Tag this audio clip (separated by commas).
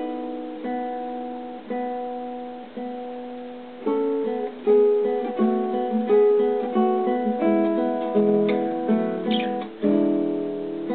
Musical instrument, Guitar, Music, Strum, Plucked string instrument